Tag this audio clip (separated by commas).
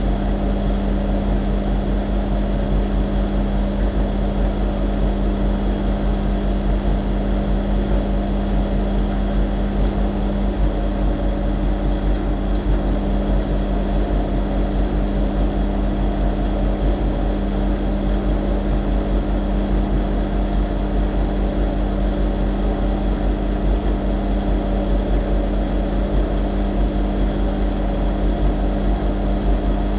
Engine